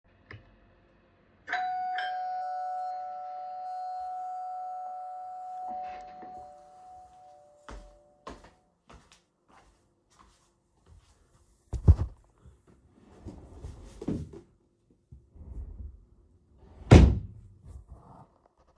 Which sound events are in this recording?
bell ringing, footsteps, wardrobe or drawer